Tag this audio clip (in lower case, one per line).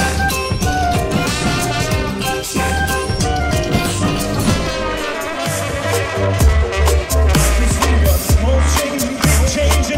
music